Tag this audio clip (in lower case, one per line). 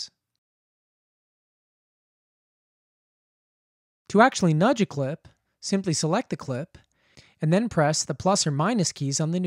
speech